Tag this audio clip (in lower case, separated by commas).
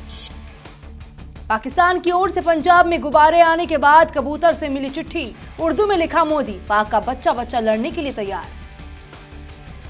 music, speech